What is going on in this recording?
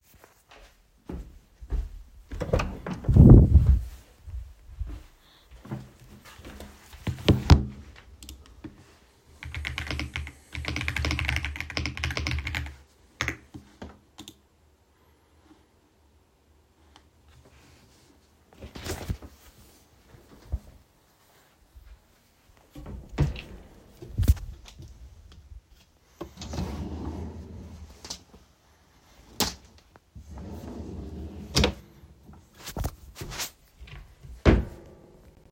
I walked to my room, entered and sat down and started typing on the keyboard. I then got up, went to my wardrobe, searched the drawers, took out my shirt and closed the drawer again.